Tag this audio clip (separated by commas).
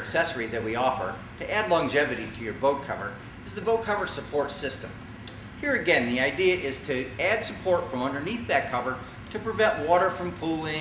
Speech